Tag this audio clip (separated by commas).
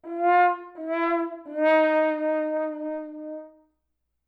Musical instrument, Brass instrument, Music